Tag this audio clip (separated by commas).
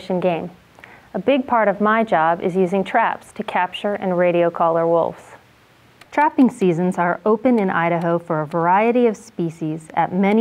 Speech